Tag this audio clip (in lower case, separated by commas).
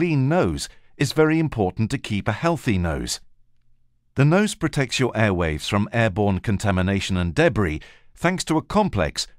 speech